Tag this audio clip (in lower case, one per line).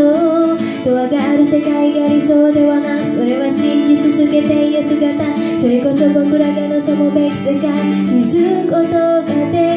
music